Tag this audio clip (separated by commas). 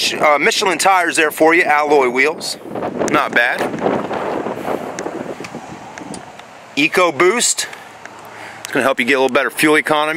Speech